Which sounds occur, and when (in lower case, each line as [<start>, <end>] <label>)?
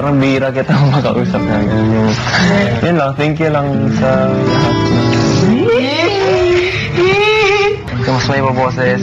[0.00, 2.10] male speech
[0.00, 9.02] music
[2.17, 2.75] human voice
[2.77, 4.42] male speech
[5.07, 5.16] tick
[5.59, 6.57] human voice
[6.50, 6.88] breathing
[6.93, 7.83] human voice
[7.04, 7.15] tick
[7.85, 9.02] male speech